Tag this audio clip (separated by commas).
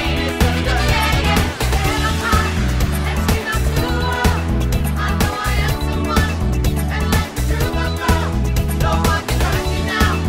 Pop music, Music